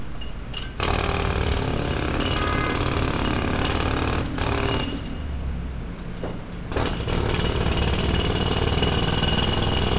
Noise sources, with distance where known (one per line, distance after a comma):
jackhammer, near
car horn, near